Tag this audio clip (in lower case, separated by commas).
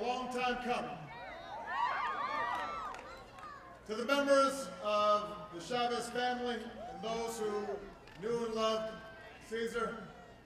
speech, male speech